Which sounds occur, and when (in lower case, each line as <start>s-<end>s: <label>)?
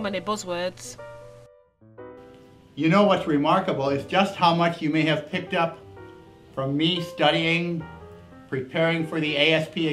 0.0s-0.7s: man speaking
0.0s-9.9s: music
0.7s-1.0s: human sounds
2.7s-5.8s: man speaking
6.6s-7.9s: man speaking
8.5s-9.9s: man speaking